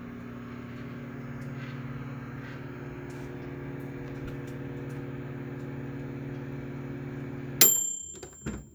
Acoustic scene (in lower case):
kitchen